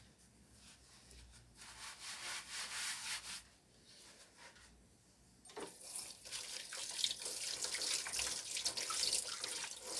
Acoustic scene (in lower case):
kitchen